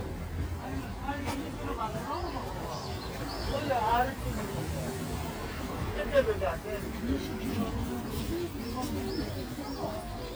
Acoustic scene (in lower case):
residential area